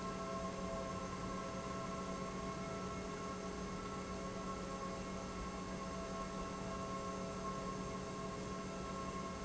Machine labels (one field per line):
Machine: pump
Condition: normal